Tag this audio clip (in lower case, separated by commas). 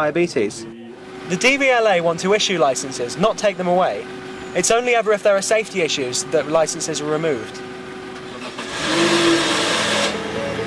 vehicle, speech, car, outside, urban or man-made